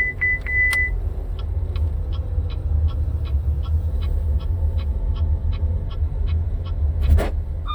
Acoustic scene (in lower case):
car